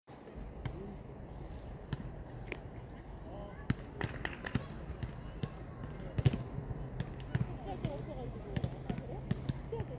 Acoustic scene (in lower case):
park